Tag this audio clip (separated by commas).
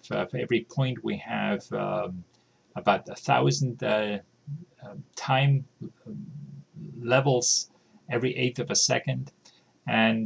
Speech